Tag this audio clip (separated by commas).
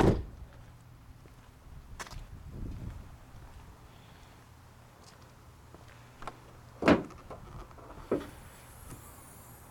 Door